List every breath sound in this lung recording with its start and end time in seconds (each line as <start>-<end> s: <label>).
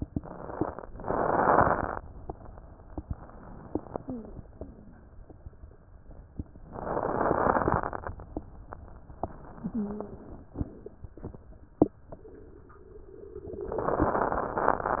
0.88-2.04 s: inhalation
4.04-4.32 s: wheeze
9.62-10.19 s: wheeze